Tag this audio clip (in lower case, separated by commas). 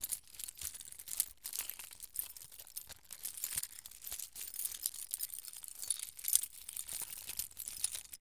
keys jangling, home sounds